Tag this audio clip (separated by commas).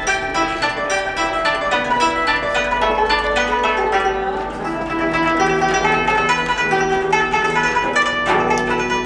playing zither